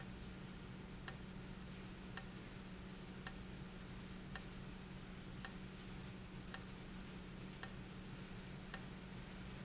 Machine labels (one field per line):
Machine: valve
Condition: abnormal